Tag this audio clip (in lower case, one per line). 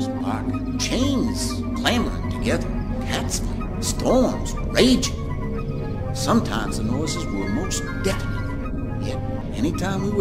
music
speech